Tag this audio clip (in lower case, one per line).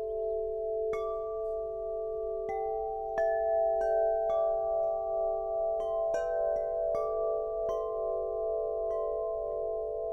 wind chime